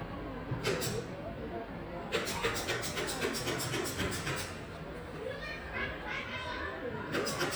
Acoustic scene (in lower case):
residential area